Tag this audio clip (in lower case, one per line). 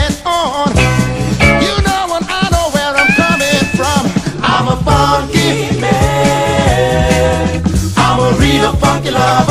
music